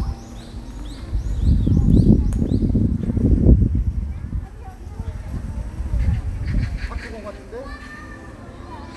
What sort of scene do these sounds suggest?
park